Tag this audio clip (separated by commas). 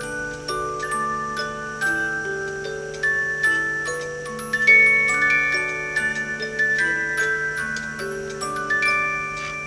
Clock, Music, Tick